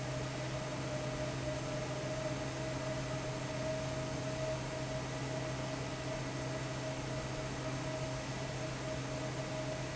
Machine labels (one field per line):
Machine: fan